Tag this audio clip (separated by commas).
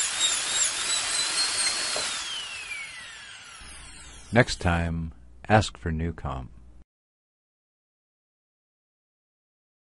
Speech